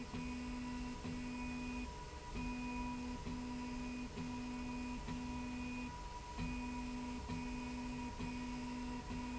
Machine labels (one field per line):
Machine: slide rail